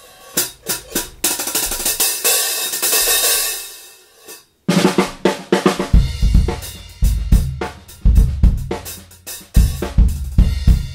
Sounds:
drum kit, drum, percussion, bass drum, drum roll, snare drum, rimshot

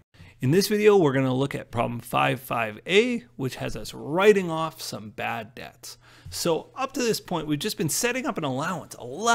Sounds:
speech

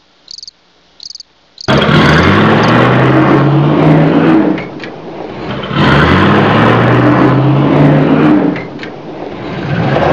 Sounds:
outside, urban or man-made

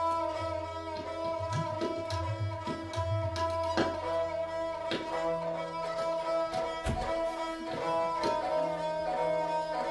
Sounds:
drum, classical music, sitar, tabla, music, musical instrument, carnatic music, string section

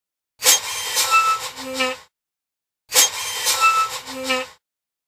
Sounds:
air brake

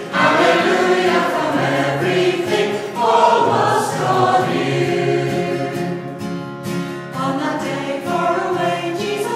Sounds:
music, choir

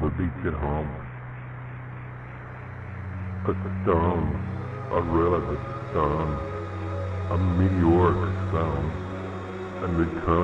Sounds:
speech, music

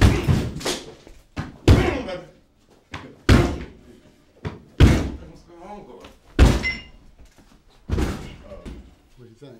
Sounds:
speech, door, knock, slam

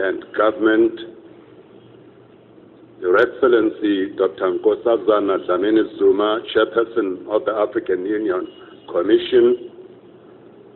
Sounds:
narration, man speaking, speech

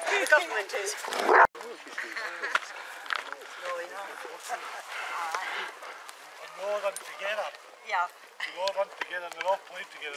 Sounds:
speech, domestic animals, animal, outside, rural or natural, dog, canids

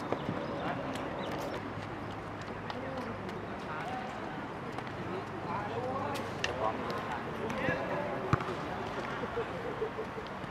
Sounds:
speech, male speech, outside, urban or man-made

